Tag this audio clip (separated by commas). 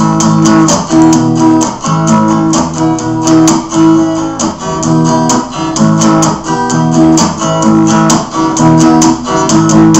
Musical instrument, Plucked string instrument, Acoustic guitar, Music, Strum, Guitar